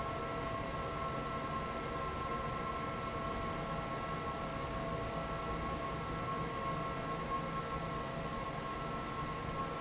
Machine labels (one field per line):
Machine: fan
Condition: normal